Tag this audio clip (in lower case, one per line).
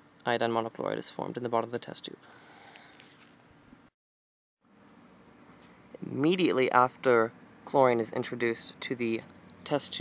speech